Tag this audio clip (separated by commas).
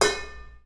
home sounds, dishes, pots and pans